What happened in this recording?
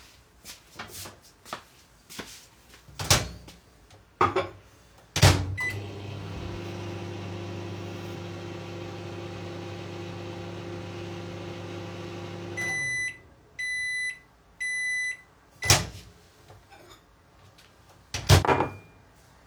I took a cup, heated it up in tha microwave and removed it.